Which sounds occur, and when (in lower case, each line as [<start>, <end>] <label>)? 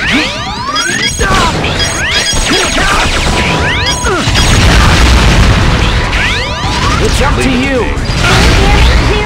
[0.00, 1.19] sound effect
[0.00, 9.25] video game sound
[0.66, 1.47] man speaking
[1.61, 4.65] sound effect
[2.44, 3.04] man speaking
[3.99, 4.33] human sounds
[5.87, 7.06] sound effect
[6.99, 8.07] man speaking